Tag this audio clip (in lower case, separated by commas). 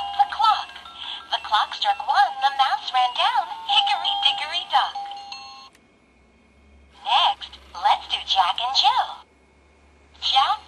music for children, music, speech